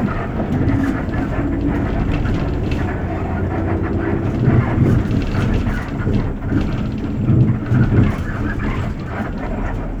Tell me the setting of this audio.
bus